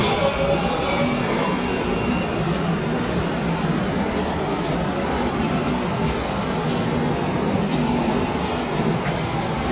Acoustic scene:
subway station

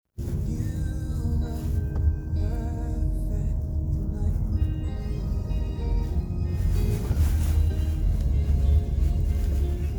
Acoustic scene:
car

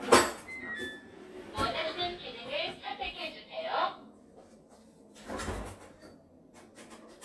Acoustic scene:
kitchen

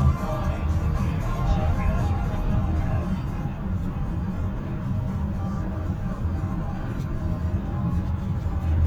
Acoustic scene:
car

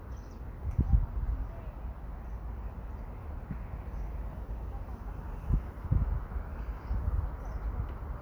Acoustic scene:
park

